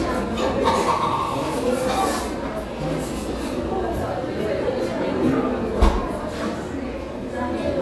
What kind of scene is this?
crowded indoor space